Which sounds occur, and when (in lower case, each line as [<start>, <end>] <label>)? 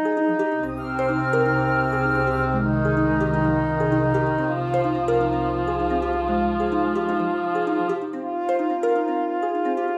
[0.00, 9.95] music